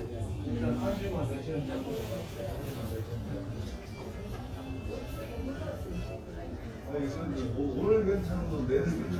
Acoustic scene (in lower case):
crowded indoor space